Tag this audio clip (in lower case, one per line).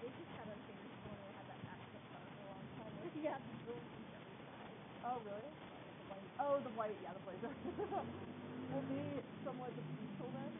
speech